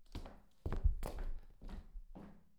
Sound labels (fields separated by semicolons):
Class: footsteps; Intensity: medium